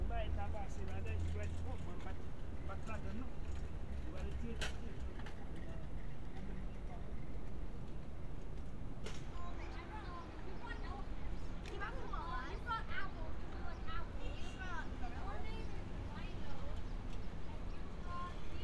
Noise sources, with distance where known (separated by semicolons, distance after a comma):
person or small group talking, near